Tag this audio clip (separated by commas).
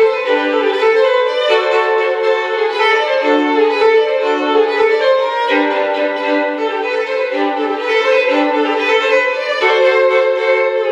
Violin, Music, Musical instrument